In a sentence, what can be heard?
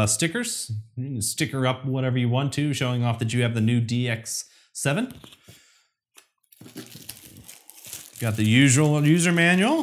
A grown man speaks clearly and enthusiastically as crinkling occurs